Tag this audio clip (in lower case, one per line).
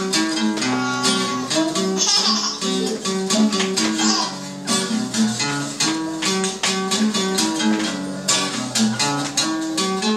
musical instrument
music
guitar
strum
plucked string instrument